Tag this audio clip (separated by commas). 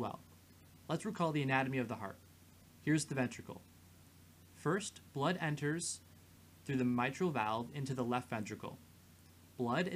Speech